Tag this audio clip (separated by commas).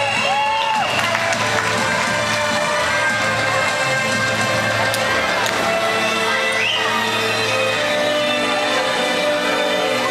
Music